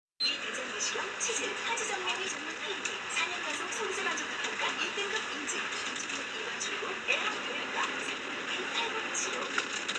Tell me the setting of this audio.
bus